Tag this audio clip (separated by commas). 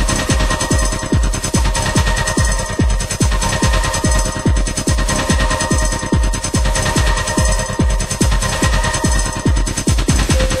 Sound effect, Music